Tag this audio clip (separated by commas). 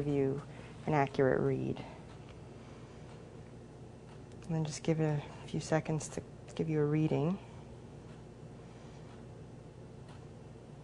Speech